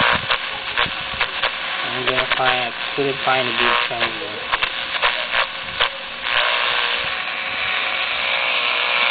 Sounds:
speech, radio

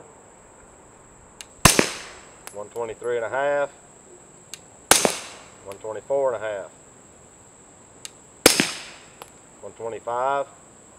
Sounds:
speech

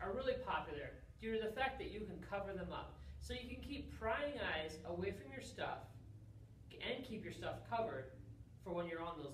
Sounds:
speech

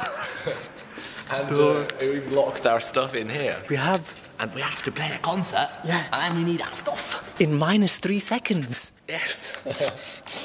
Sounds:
speech

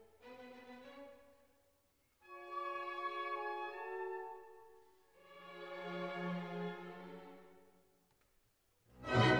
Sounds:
music, classical music

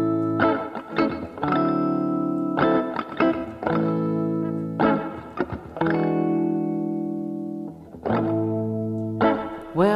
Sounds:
christmas music, music

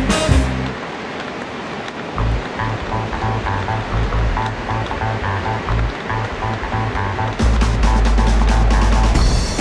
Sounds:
music

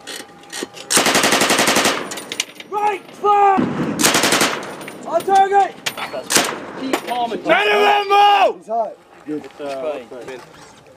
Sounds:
machine gun, gunshot

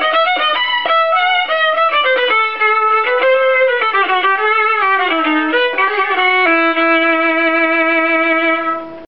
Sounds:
musical instrument, music, fiddle

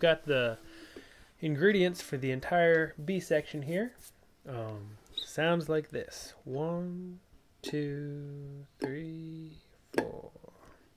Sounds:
musical instrument, banjo, speech, plucked string instrument

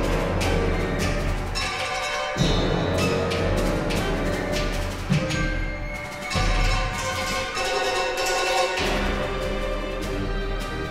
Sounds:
orchestra, music

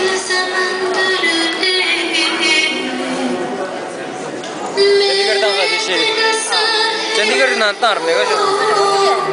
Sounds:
inside a public space, singing, inside a large room or hall, speech, music

